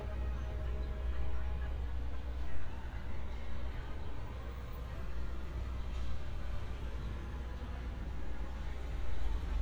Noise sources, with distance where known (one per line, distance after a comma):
person or small group talking, far